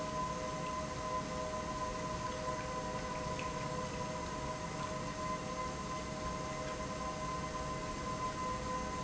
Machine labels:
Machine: pump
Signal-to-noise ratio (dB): -6 dB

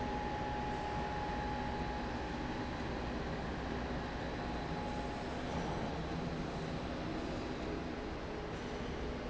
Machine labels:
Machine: slide rail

